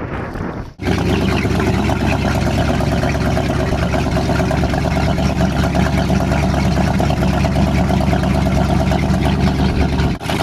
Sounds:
water vehicle
vehicle
speedboat acceleration
motorboat

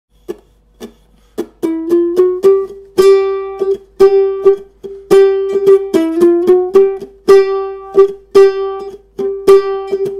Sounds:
plucked string instrument
ukulele
guitar
musical instrument
music

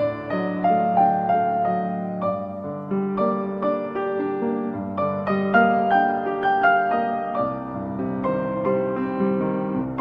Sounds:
music
tender music

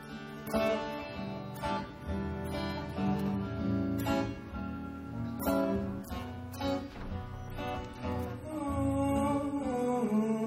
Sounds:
music
male singing

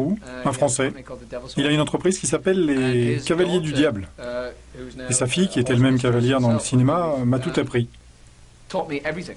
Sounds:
speech

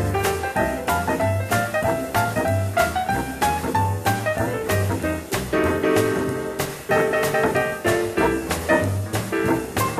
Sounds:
music

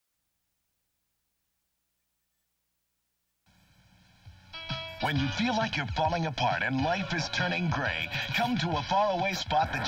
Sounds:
music
outside, rural or natural
speech

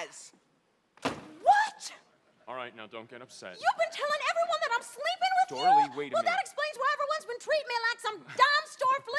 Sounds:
speech

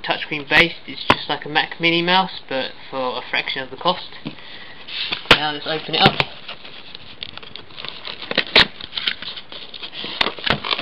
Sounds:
speech

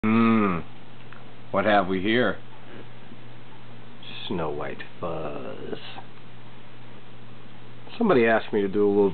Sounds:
speech

